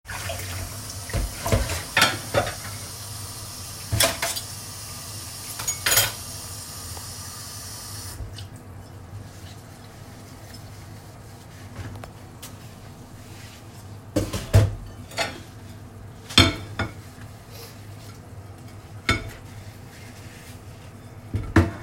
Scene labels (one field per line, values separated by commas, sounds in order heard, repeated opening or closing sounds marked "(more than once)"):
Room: kitchen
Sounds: running water, cutlery and dishes